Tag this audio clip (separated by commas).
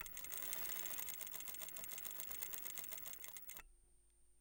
Mechanisms